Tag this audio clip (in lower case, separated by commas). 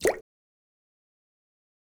splash, drip, liquid